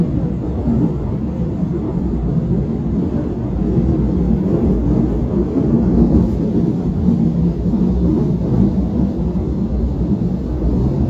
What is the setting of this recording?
subway train